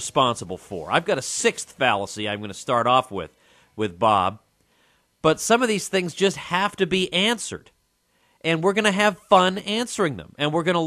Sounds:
speech

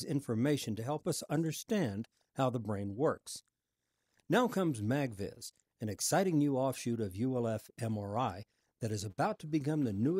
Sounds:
speech

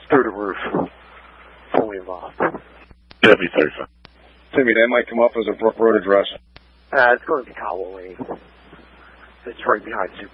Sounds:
speech

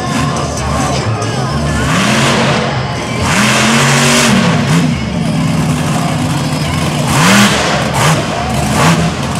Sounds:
music
vehicle
truck

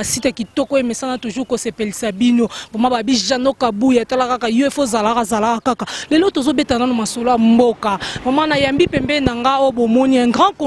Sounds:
speech

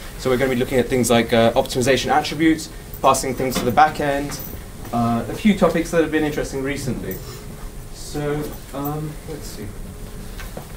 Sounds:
speech

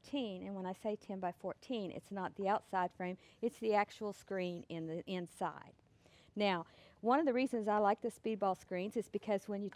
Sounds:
speech

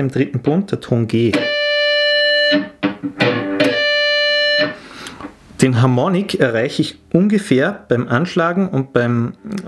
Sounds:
tapping guitar

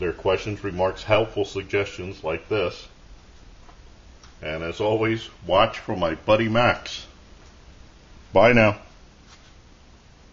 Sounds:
speech
inside a small room

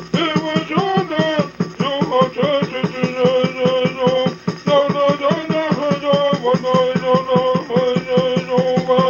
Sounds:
musical instrument
music
drum
bass drum

